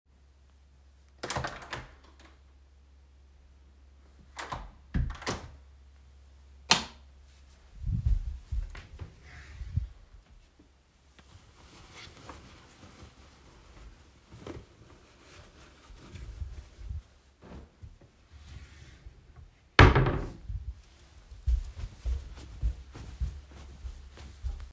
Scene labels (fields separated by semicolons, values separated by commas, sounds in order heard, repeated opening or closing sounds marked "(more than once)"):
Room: bedroom; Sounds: door, light switch, wardrobe or drawer (more than once), footsteps